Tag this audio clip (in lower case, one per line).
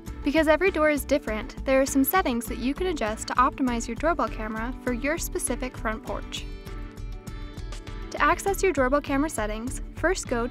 music
speech